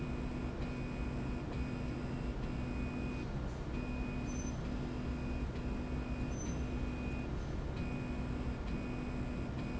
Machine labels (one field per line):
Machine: slide rail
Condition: normal